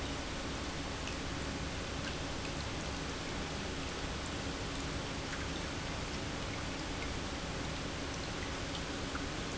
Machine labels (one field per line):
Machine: pump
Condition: normal